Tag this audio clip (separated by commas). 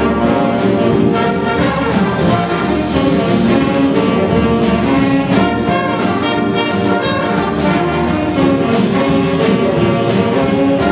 Music, Jazz